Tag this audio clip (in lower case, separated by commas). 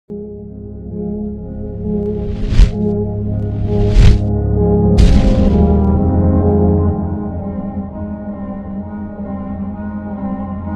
music